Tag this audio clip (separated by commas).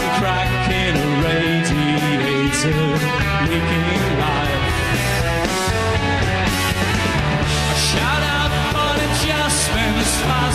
Music